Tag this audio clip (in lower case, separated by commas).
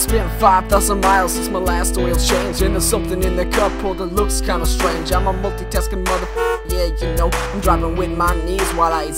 funny music, music